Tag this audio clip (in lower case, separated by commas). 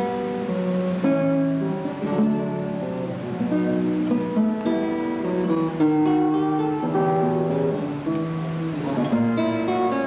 strum, music, playing acoustic guitar, guitar, musical instrument, plucked string instrument, acoustic guitar